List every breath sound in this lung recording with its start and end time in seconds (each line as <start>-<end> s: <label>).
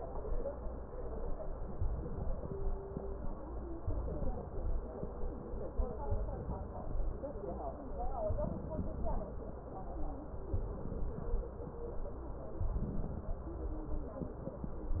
1.63-2.86 s: inhalation
3.60-4.83 s: inhalation
5.96-7.19 s: inhalation
8.06-9.29 s: inhalation
10.39-11.62 s: inhalation
12.54-13.77 s: inhalation